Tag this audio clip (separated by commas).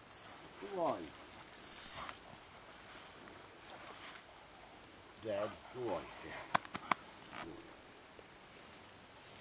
Animal, outside, rural or natural, Speech